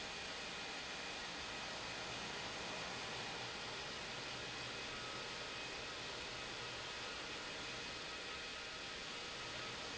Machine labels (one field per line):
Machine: pump